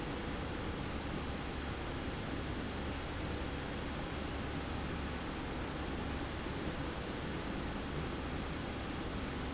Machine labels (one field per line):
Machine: slide rail